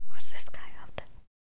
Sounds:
human voice
whispering

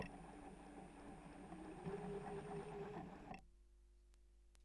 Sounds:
mechanisms

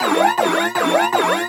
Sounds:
alarm

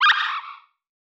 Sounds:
animal

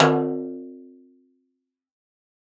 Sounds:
drum
snare drum
music
musical instrument
percussion

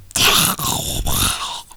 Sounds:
human voice

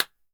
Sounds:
hands

